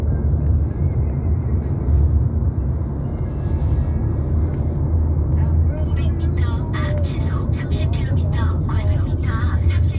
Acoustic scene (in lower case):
car